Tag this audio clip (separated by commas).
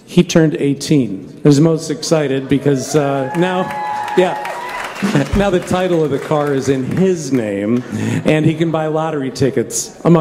Speech